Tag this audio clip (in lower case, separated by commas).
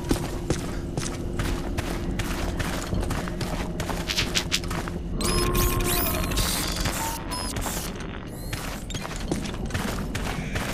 outside, urban or man-made